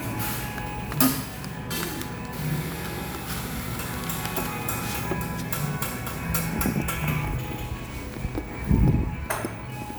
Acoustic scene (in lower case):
cafe